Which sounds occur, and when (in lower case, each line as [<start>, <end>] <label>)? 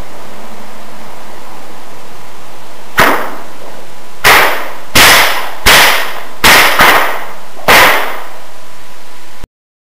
[0.00, 9.48] mechanisms
[2.98, 3.55] whip
[3.64, 3.83] generic impact sounds
[4.22, 4.75] whip
[4.94, 5.55] whip
[5.65, 6.24] whip
[6.46, 7.31] whip
[7.67, 8.39] whip